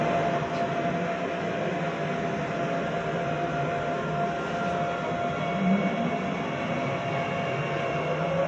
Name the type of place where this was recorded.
subway train